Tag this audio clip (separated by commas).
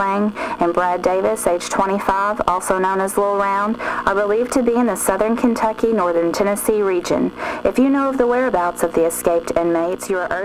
Speech